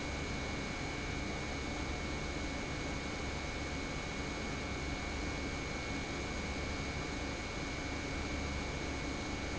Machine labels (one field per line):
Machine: pump